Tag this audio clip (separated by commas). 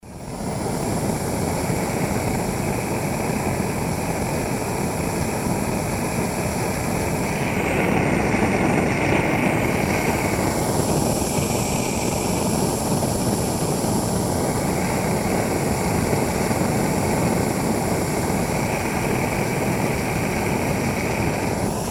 Fire